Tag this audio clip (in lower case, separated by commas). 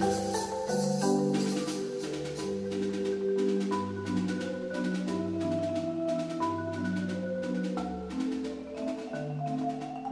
percussion, playing marimba, music, xylophone